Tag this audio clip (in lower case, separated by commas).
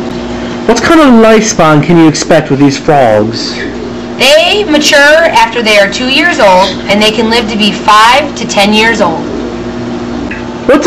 speech